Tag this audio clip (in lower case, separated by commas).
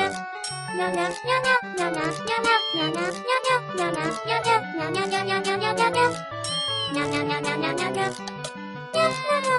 music